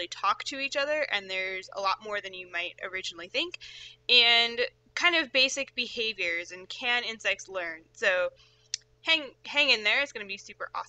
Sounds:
speech

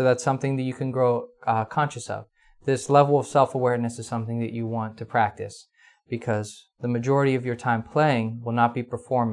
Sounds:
speech

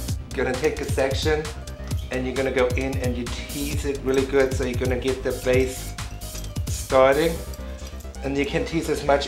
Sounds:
music
speech

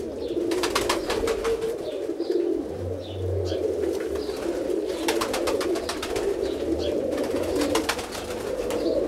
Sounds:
dove
outside, rural or natural

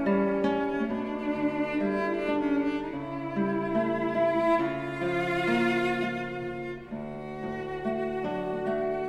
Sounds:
musical instrument
plucked string instrument
music
strum
guitar
acoustic guitar

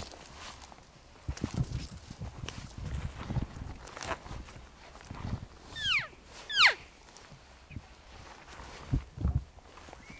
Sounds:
elk bugling

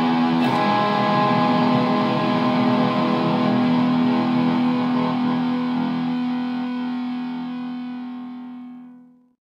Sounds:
plucked string instrument
music
guitar
musical instrument

